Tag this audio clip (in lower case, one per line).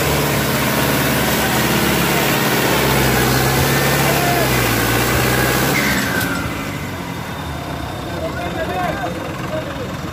tractor digging